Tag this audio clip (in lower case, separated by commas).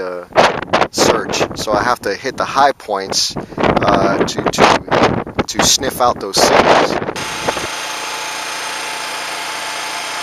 wind noise (microphone), wind